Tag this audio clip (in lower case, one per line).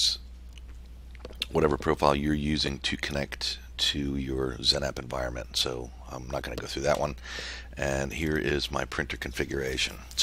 speech